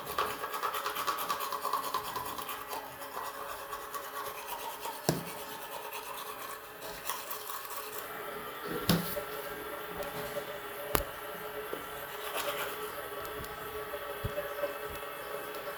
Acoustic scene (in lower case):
restroom